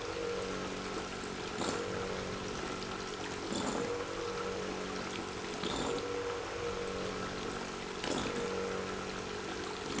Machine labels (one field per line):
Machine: pump